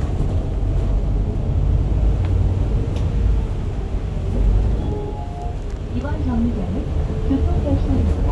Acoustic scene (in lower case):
bus